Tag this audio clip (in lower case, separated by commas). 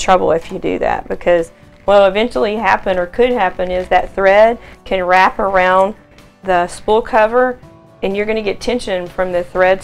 speech, music